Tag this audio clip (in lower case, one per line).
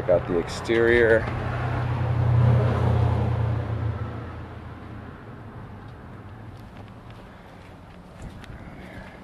speech
walk